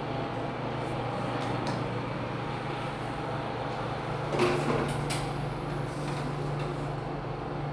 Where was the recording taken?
in an elevator